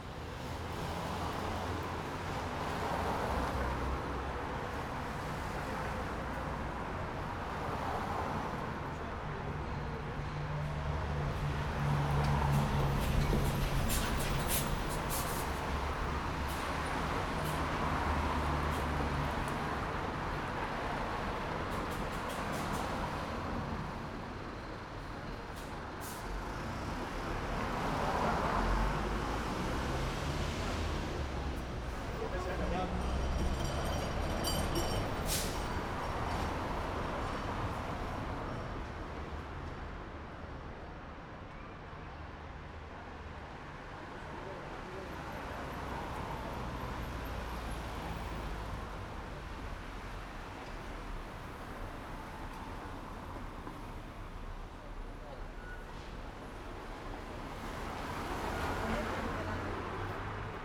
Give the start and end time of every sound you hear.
0.0s-0.6s: car engine accelerating
0.0s-13.9s: car
0.0s-13.9s: car wheels rolling
8.9s-11.5s: music
10.4s-15.1s: bus wheels rolling
10.4s-15.5s: bus compressor
10.4s-38.0s: bus
10.4s-15.5s: bus engine accelerating
14.3s-60.6s: car
14.3s-60.6s: car wheels rolling
15.5s-26.3s: bus engine idling
16.3s-16.7s: bus compressor
17.2s-17.7s: bus compressor
18.5s-19.1s: bus compressor
21.4s-23.2s: bus compressor
25.3s-26.3s: bus compressor
26.3s-32.8s: bus engine accelerating
32.2s-33.5s: people talking
32.2s-38.0s: bus wheels rolling
35.2s-35.6s: bus compressor
43.9s-45.4s: people talking
46.5s-49.3s: car engine accelerating
58.5s-60.6s: people talking

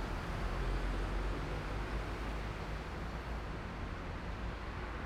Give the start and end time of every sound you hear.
0.0s-4.4s: bus
0.0s-4.4s: bus engine accelerating
0.0s-5.0s: car
0.0s-5.0s: car wheels rolling

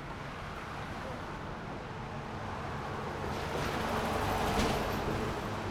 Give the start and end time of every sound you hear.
0.0s-3.7s: car
0.0s-3.7s: car wheels rolling
3.6s-5.3s: truck
3.6s-5.3s: truck engine accelerating
3.6s-5.3s: truck wheels rolling

